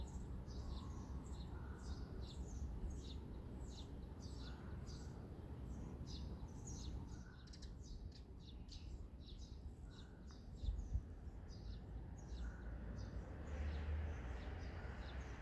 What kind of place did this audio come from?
residential area